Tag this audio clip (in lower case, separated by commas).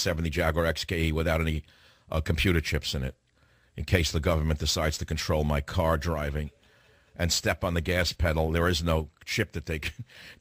speech